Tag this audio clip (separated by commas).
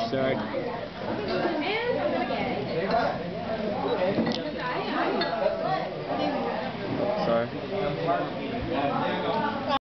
Speech, inside a public space